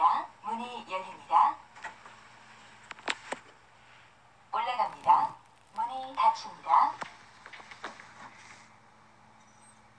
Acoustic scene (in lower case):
elevator